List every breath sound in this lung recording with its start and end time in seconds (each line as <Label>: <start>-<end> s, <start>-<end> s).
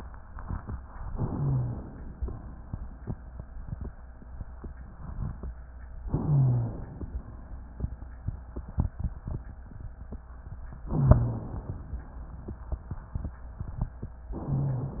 Inhalation: 1.14-2.16 s, 6.08-7.10 s, 10.90-11.92 s, 14.36-15.00 s
Rhonchi: 1.26-1.86 s, 6.18-6.78 s, 10.88-11.48 s, 14.42-15.00 s